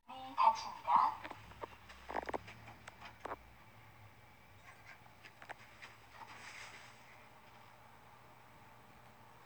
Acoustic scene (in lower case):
elevator